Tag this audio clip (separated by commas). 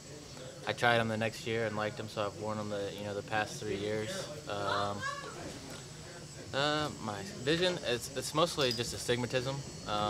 Speech